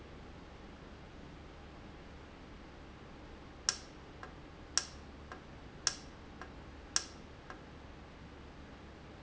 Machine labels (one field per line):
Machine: valve